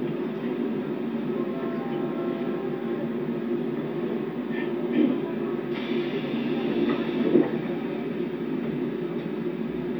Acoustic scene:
subway train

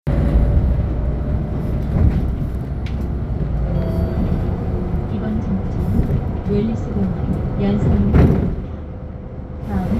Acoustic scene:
bus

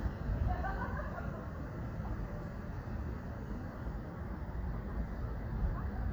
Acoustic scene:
residential area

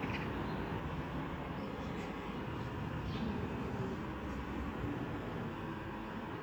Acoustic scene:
residential area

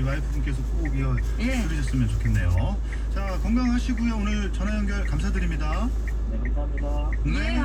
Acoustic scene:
car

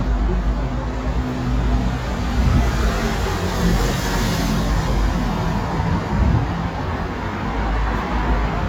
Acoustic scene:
street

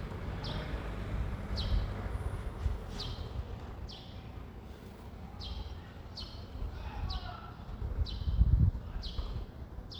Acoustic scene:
residential area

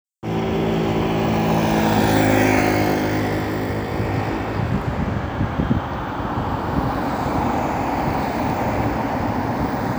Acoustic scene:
street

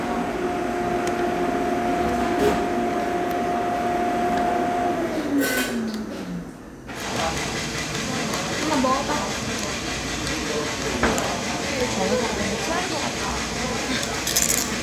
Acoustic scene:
cafe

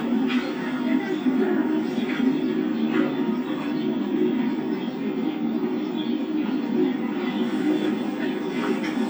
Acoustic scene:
park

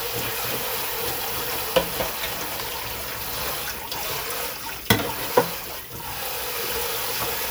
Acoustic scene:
kitchen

